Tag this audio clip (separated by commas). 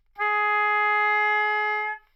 Musical instrument, Music, Wind instrument